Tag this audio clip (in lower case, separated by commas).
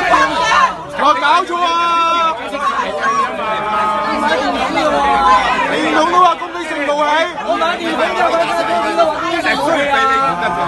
people booing